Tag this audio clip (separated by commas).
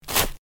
Domestic sounds